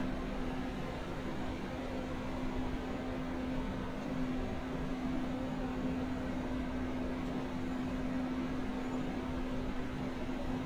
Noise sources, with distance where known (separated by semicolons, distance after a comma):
engine of unclear size